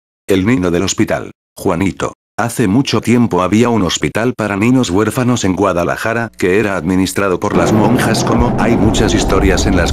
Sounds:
Speech synthesizer, Speech

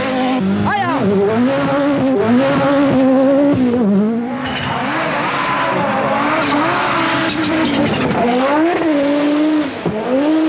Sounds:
Car, Vehicle, Speech, vroom

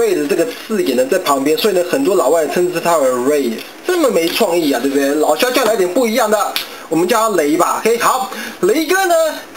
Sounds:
Speech

